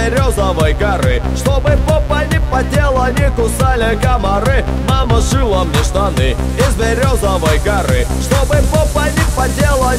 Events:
0.0s-9.9s: music
0.0s-1.2s: male singing
1.3s-4.6s: male singing
4.7s-6.4s: male singing
6.5s-8.0s: male singing
8.2s-9.9s: male singing

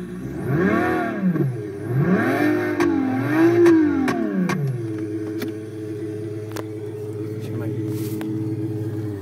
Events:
0.0s-9.2s: car
0.3s-1.3s: revving
1.9s-2.8s: revving
2.7s-2.8s: generic impact sounds
3.2s-4.0s: revving
3.6s-3.7s: generic impact sounds
4.0s-4.1s: generic impact sounds
4.4s-4.5s: generic impact sounds
4.6s-4.7s: tick
4.9s-5.0s: tick
5.2s-5.4s: generic impact sounds
6.5s-6.6s: generic impact sounds
7.3s-7.7s: male speech
7.8s-8.2s: surface contact
8.1s-8.2s: tick

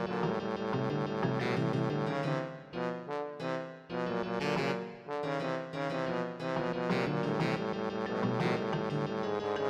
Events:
0.0s-9.6s: music

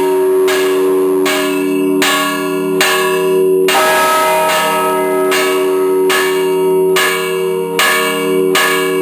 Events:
0.0s-9.0s: church bell

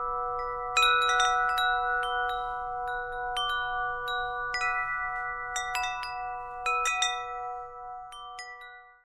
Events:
0.0s-9.0s: wind chime
5.1s-5.3s: generic impact sounds

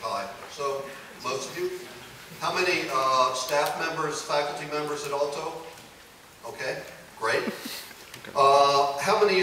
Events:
0.0s-0.4s: man speaking
0.0s-9.4s: mechanisms
0.5s-1.0s: man speaking
1.2s-1.8s: man speaking
1.8s-2.1s: human voice
2.3s-5.9s: man speaking
3.6s-3.7s: generic impact sounds
5.7s-5.8s: generic impact sounds
6.4s-6.9s: man speaking
7.2s-7.9s: man speaking
7.4s-7.5s: human voice
7.5s-7.9s: surface contact
7.6s-7.7s: human voice
8.0s-8.3s: generic impact sounds
8.1s-9.4s: man speaking

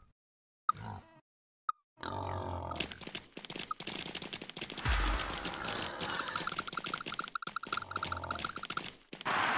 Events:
0.0s-0.1s: video game sound
0.0s-0.1s: bleep
0.7s-0.7s: bleep
0.7s-1.0s: pig
0.7s-1.2s: video game sound
0.9s-1.2s: animal
1.6s-1.8s: video game sound
1.6s-1.7s: bleep
1.9s-9.5s: video game sound
1.9s-2.2s: animal
1.9s-2.8s: pig
2.7s-2.8s: bleep
2.7s-8.9s: generic impact sounds
3.7s-3.7s: bleep
4.8s-6.5s: pig
4.8s-5.2s: sound effect
6.1s-8.8s: bleep
7.6s-8.4s: pig
9.1s-9.2s: generic impact sounds
9.2s-9.5s: noise

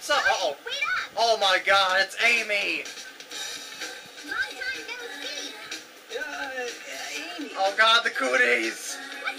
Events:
0.0s-0.6s: male speech
0.0s-1.1s: kid speaking
0.0s-9.3s: conversation
0.0s-9.3s: television
1.1s-2.8s: male speech
1.8s-2.0s: tick
1.8s-9.3s: music
4.1s-5.8s: singing
4.2s-5.8s: kid speaking
6.1s-8.9s: male speech
7.0s-7.8s: singing
8.0s-9.3s: singing

